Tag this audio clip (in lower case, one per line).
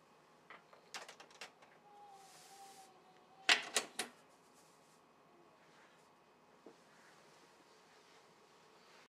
inside a small room